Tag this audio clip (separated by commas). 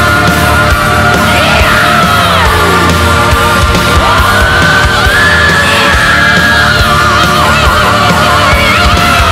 Music